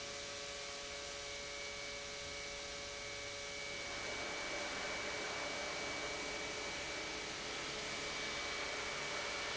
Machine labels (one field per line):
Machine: pump